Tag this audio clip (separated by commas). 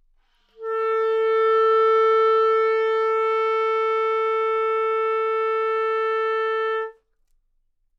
Music, Wind instrument, Musical instrument